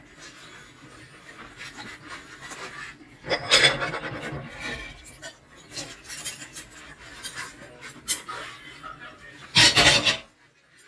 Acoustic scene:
kitchen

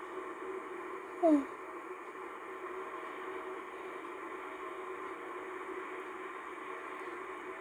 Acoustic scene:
car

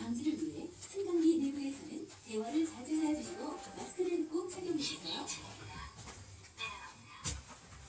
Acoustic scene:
elevator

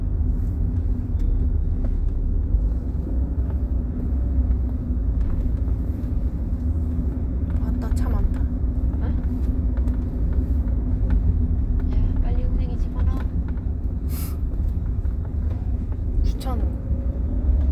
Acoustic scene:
car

